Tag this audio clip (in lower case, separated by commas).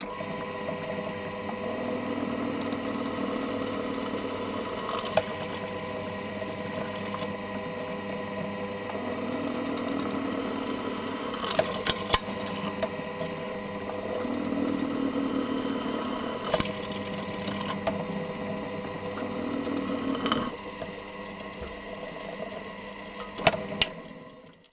drill, power tool, tools